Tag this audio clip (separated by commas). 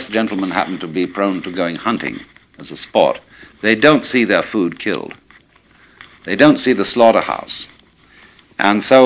Speech